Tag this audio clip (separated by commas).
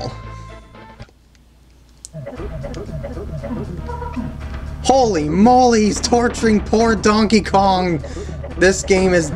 Speech, Music